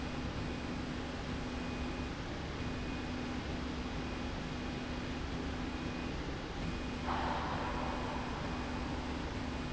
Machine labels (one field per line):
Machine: slide rail